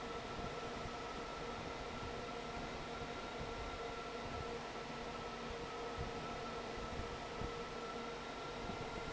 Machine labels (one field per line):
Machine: fan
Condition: normal